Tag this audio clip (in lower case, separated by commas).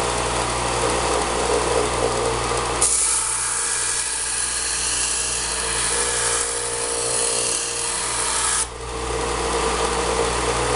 power tool, tools